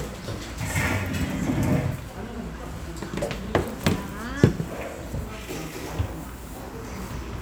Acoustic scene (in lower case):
restaurant